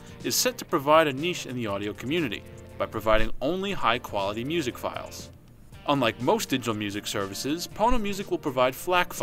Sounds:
Music, Speech

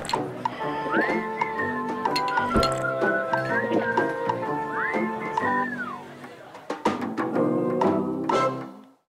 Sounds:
Music

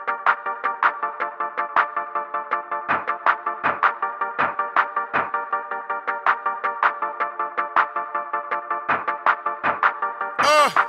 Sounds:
Music

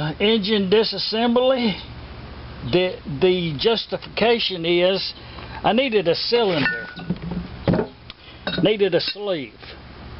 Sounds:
Speech, inside a small room

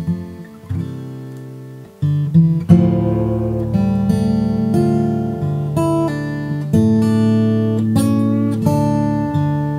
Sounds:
Musical instrument, Music, Strum, Guitar, playing acoustic guitar, Plucked string instrument, Acoustic guitar

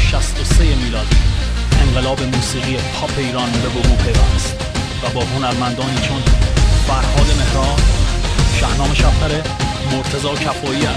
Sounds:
Speech, Music

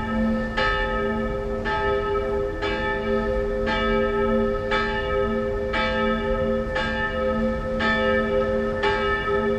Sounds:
Bell

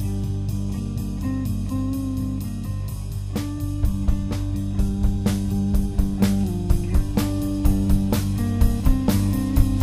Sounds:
Music

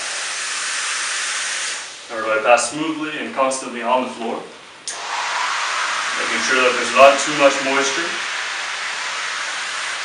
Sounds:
Speech

